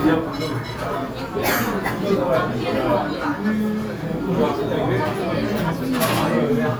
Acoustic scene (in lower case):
restaurant